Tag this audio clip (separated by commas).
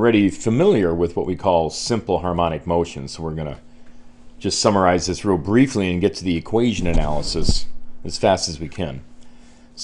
Speech